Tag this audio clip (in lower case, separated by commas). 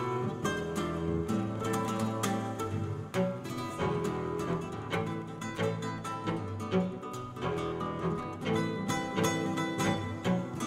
guitar, cello, flamenco, music